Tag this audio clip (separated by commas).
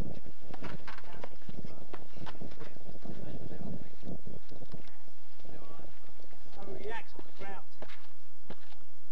Speech